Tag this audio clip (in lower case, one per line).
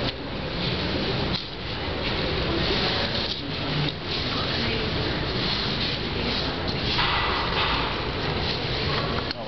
speech